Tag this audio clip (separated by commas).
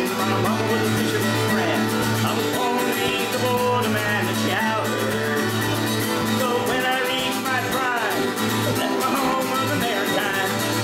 Music, Male singing